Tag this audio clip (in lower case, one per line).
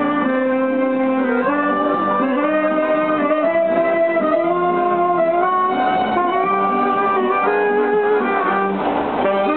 music